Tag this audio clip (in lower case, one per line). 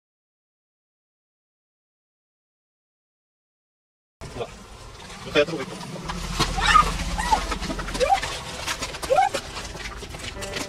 speech
music